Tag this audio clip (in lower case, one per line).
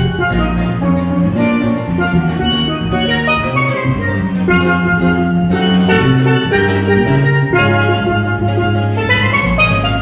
steelpan
music
electronic organ
drum
hammond organ